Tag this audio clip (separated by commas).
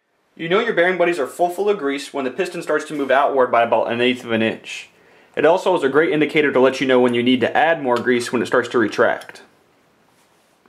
Speech